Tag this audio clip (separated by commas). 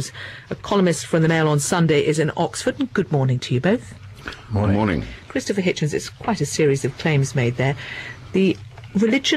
Speech